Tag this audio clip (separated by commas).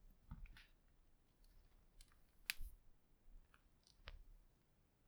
Crack